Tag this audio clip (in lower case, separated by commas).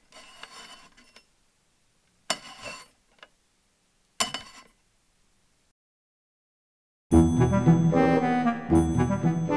music, inside a small room, speech, outside, rural or natural